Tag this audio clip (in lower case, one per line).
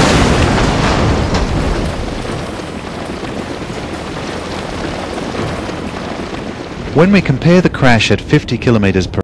car
speech
vehicle